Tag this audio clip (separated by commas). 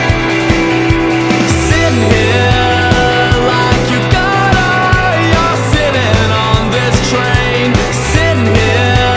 Music